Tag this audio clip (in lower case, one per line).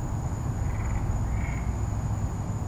animal
wild animals
insect